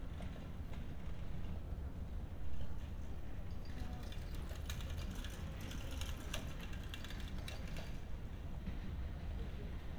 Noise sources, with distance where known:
background noise

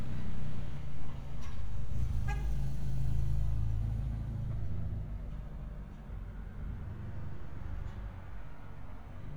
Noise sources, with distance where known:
engine of unclear size, near
car horn, near

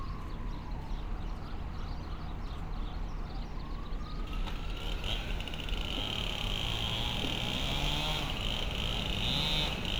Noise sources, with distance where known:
chainsaw

